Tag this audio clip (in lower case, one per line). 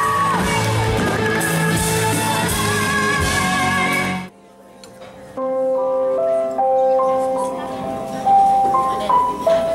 music
pop music